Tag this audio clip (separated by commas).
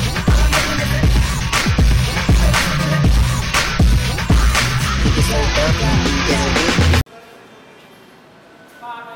Music, Hip hop music